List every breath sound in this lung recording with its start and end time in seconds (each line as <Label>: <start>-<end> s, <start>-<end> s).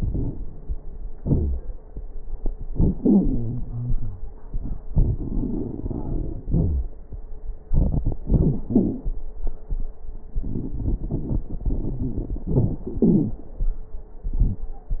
Inhalation: 4.89-6.41 s, 7.69-8.23 s, 10.38-12.43 s
Exhalation: 1.17-1.61 s, 6.46-6.90 s, 8.22-9.14 s, 12.49-13.41 s
Wheeze: 1.18-1.61 s, 2.96-4.33 s, 6.47-6.93 s, 8.27-8.59 s, 8.68-9.00 s, 13.06-13.39 s
Crackles: 4.89-6.41 s, 7.70-8.16 s, 10.38-12.43 s